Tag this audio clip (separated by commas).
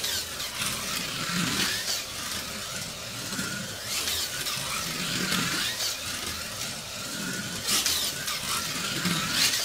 Car